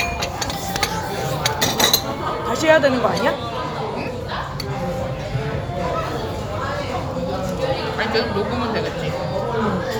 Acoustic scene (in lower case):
restaurant